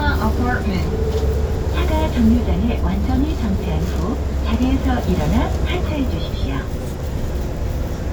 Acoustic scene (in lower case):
bus